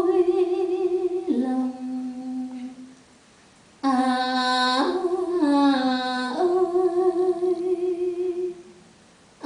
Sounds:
Lullaby

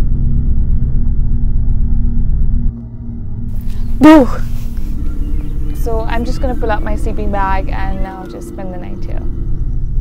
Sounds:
Speech, outside, rural or natural

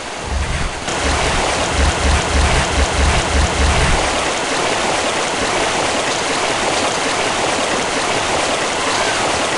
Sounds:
Stream

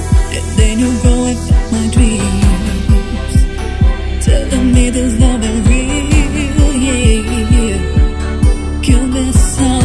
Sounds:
Music

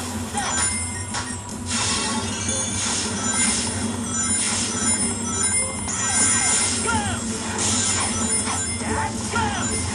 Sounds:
Speech

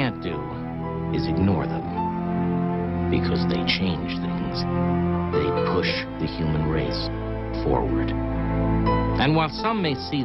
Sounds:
Speech, Music

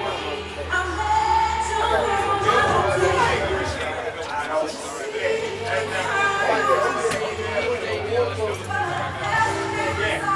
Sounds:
Speech, Music

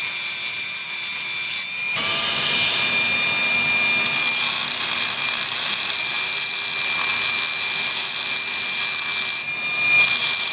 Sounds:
Tools

